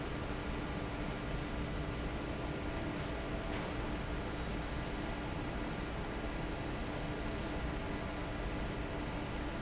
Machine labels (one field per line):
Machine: fan